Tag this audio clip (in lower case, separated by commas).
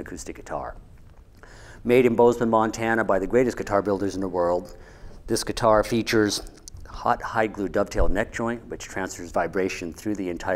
speech